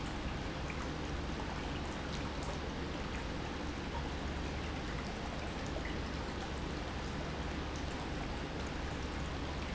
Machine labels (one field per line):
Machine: pump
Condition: normal